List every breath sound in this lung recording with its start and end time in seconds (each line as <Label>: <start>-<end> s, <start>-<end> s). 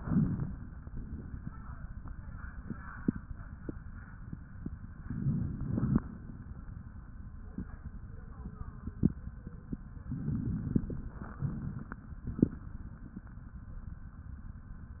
Inhalation: 0.00-0.82 s, 5.03-6.02 s, 10.09-11.31 s
Exhalation: 0.85-1.48 s, 11.37-12.03 s
Crackles: 0.00-0.82 s, 5.01-6.00 s, 10.07-11.31 s, 11.37-12.03 s